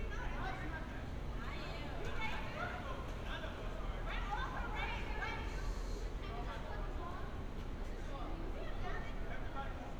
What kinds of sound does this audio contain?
background noise